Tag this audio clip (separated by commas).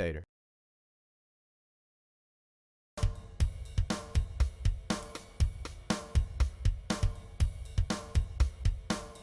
Speech, Music